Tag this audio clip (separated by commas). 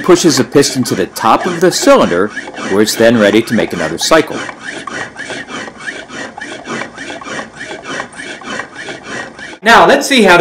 Speech